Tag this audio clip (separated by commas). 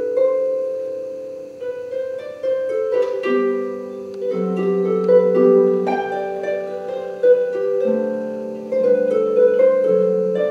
playing harp, inside a large room or hall, Music, Musical instrument, Plucked string instrument, Harp